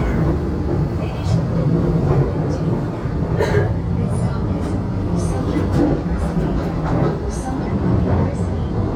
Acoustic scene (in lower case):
subway train